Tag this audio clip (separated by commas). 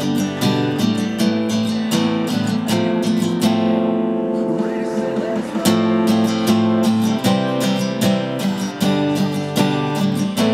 Acoustic guitar, Strum, Guitar, Plucked string instrument, Musical instrument, Music